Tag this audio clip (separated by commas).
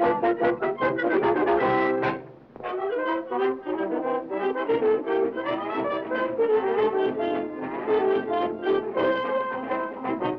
Music